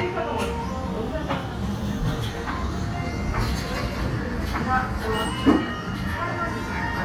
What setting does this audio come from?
cafe